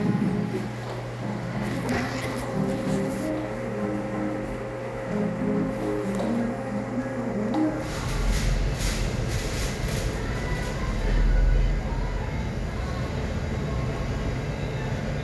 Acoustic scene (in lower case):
cafe